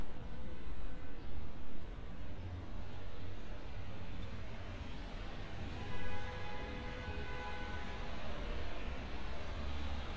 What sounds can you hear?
car horn